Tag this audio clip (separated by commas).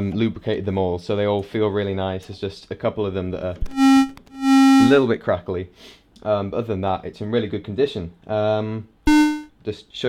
Speech, Music